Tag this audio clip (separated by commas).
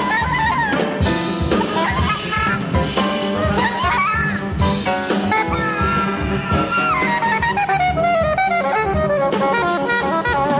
Clarinet